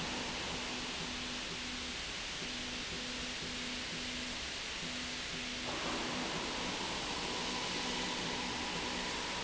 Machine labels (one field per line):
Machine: slide rail